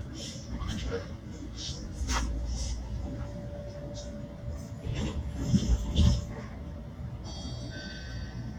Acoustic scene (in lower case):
bus